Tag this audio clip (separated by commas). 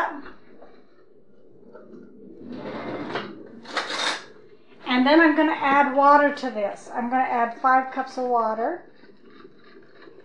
inside a small room, Speech